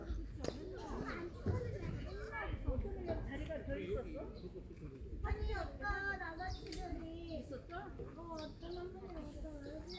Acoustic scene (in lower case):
park